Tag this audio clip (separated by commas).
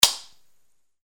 Gunshot, Explosion